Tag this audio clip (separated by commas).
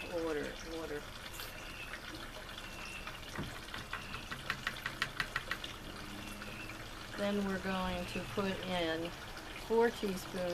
Speech